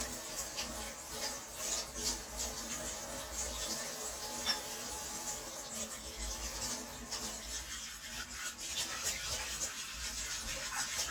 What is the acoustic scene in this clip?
kitchen